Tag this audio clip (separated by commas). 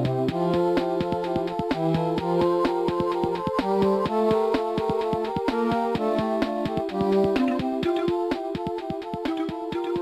Music